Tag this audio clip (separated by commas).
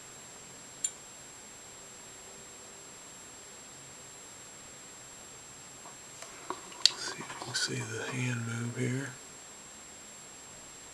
Speech